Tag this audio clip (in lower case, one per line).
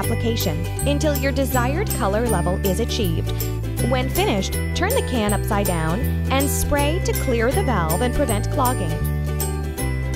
speech
music